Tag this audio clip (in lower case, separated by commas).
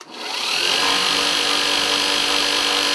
tools